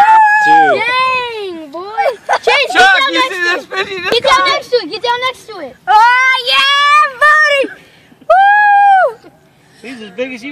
A young boy yelling and a man talking